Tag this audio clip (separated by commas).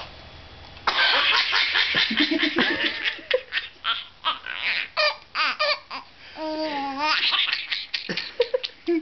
baby laughter